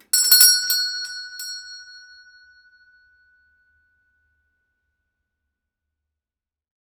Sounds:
alarm, doorbell, door, home sounds, bell

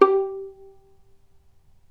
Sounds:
musical instrument, music, bowed string instrument

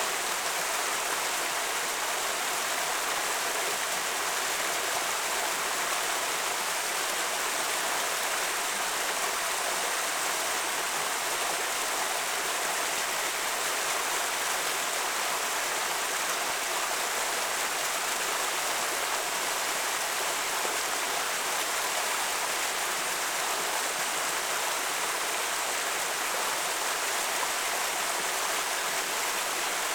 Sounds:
water, stream

